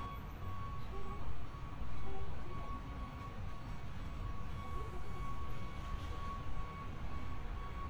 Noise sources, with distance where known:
person or small group talking, far

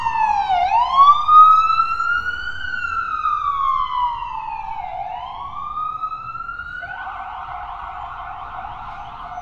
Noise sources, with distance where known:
siren, near

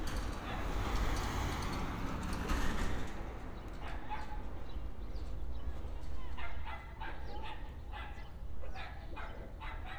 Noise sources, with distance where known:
dog barking or whining

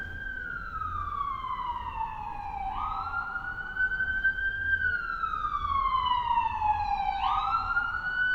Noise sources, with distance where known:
siren, near

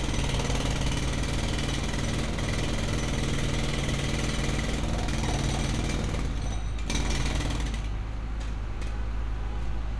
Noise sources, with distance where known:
jackhammer, near
car horn, far

